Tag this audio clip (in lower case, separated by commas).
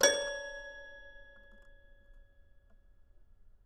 keyboard (musical), musical instrument, music